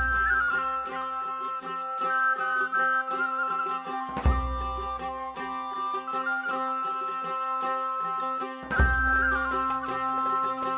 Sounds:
music

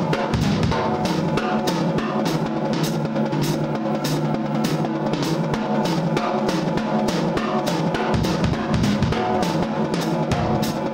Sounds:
music

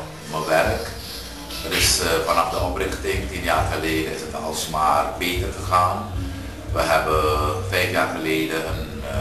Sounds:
music
speech

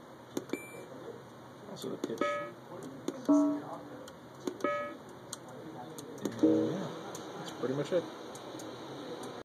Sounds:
speech
sampler

